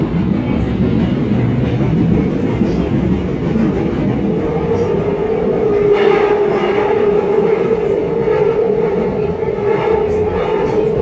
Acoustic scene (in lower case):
subway train